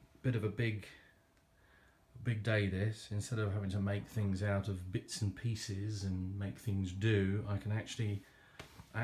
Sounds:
speech

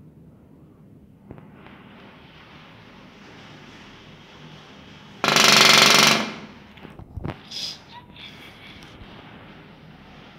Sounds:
woodpecker pecking tree

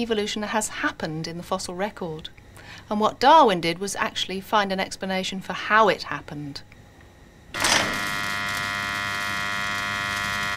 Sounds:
speech

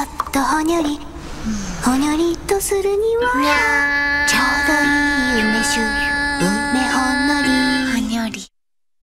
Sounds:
speech
music

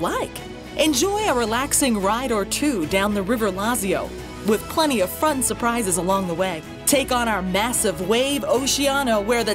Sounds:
speech
music

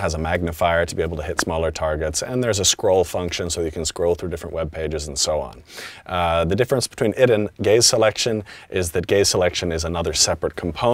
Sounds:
speech

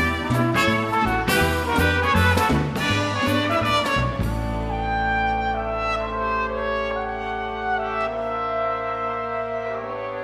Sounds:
rimshot
drum kit
percussion
drum
snare drum
bass drum

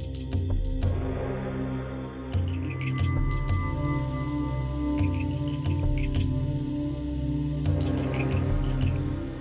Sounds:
music

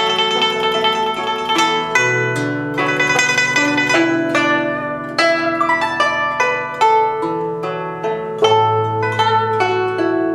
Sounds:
music
zither

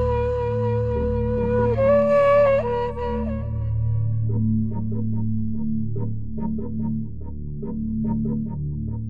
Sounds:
music

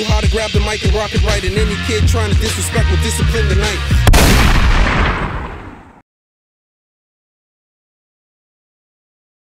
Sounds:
music

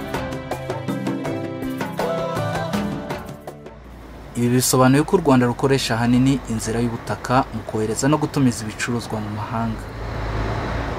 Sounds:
music
vehicle
speech

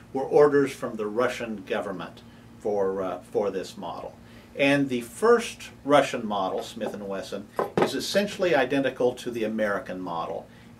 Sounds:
speech

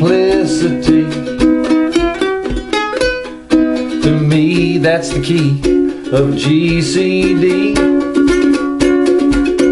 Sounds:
ukulele
music
inside a small room

